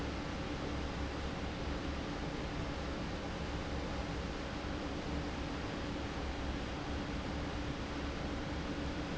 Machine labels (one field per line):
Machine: fan